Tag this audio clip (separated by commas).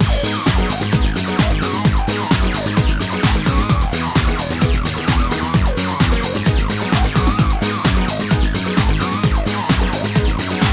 Music